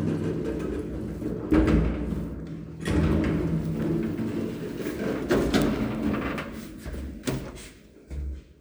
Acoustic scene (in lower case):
elevator